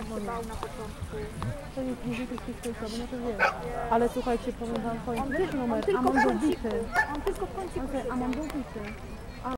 Two adult females are speaking, a crowd is speaking in the background, and dogs are barking